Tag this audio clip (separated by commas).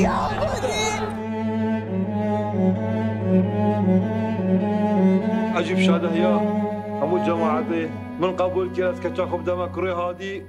Speech, Music